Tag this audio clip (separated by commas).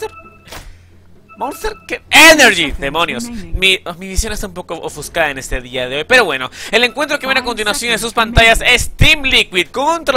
Speech